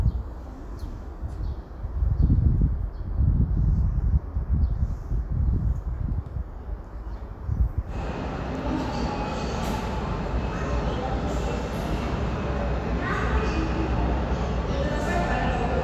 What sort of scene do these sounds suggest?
subway station